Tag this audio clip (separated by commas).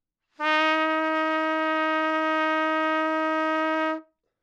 Trumpet, Music, Brass instrument, Musical instrument